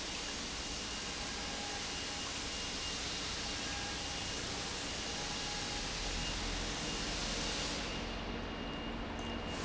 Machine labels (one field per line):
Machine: pump